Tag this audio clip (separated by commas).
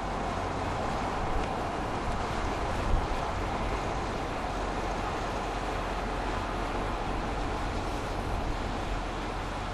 outside, urban or man-made, Car, Vehicle